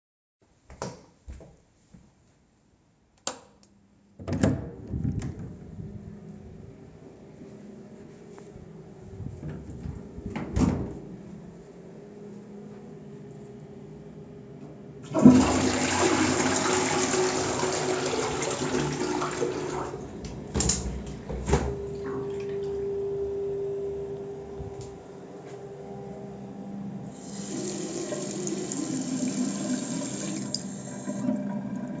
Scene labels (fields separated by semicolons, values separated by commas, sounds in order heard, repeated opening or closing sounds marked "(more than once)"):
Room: lavatory; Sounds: door (more than once), light switch, window (more than once), toilet flushing, running water